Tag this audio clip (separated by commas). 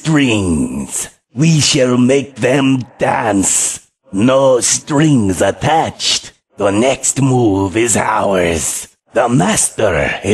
Speech